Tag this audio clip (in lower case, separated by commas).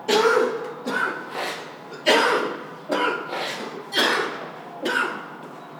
cough, respiratory sounds